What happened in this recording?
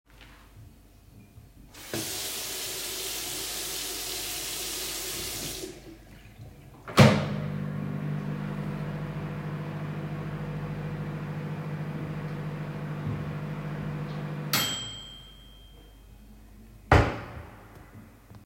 The device was placed on a stable surface. I first turned on running water and then started the microwave. After the microwave sound ended, I opened and closed a wardrobe or drawer. The target events occurred sequentially without overlap.